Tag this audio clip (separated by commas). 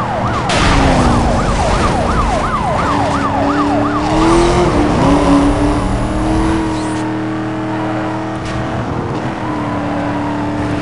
Police car (siren), Car